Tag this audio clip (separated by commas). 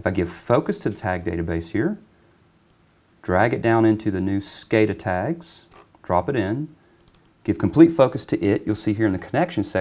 Speech